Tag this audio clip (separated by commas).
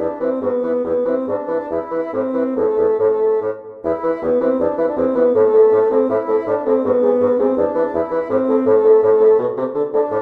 playing bassoon